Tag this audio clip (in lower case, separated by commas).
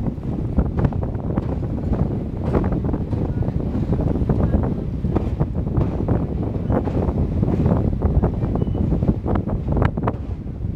train, clickety-clack, rail transport, railroad car